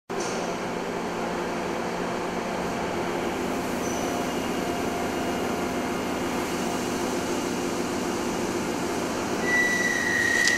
A power drill is turned on and runs